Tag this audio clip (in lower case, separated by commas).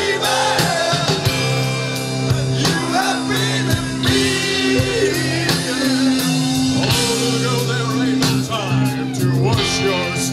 crowd, music, progressive rock, rock music